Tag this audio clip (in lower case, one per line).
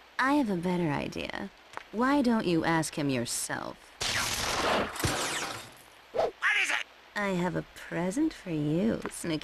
speech